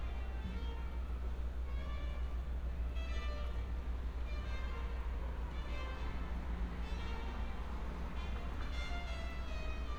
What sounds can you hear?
music from an unclear source